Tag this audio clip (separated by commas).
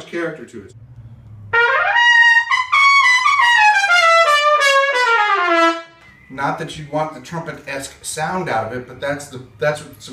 Brass instrument, Wind instrument, Trumpet